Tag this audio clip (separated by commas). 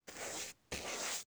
home sounds, Writing